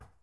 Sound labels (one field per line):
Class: object falling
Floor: carpet